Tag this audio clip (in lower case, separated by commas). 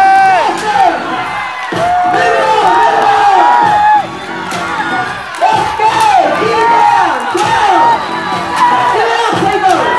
speech